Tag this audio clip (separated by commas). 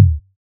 Drum, Musical instrument, Music, Bass drum, Percussion